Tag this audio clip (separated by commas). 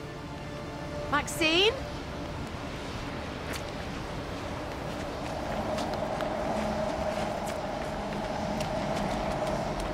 Speech